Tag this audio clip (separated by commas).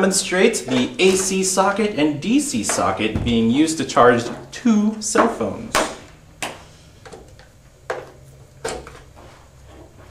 inside a small room, Speech